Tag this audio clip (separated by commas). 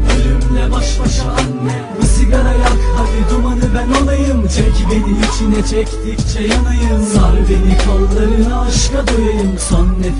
Music